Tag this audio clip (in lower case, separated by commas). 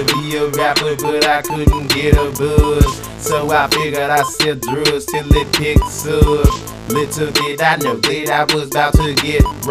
music